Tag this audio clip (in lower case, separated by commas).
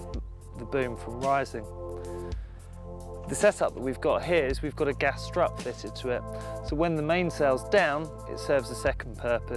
speech, music